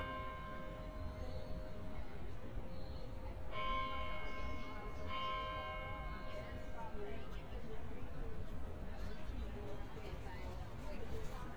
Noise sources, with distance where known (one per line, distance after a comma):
music from a fixed source, near
person or small group talking